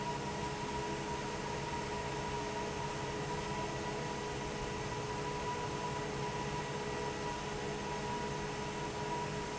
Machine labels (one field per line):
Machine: fan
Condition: normal